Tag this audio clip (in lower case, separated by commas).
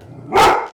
animal, bark, dog, domestic animals